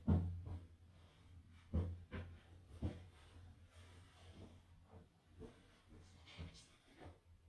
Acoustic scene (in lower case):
restroom